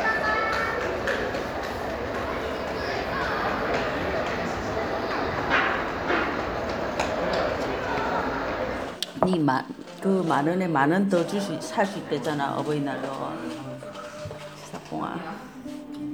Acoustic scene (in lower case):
crowded indoor space